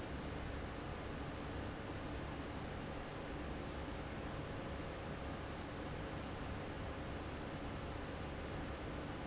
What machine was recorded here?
fan